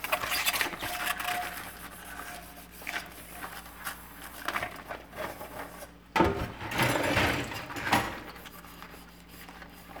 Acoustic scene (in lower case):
kitchen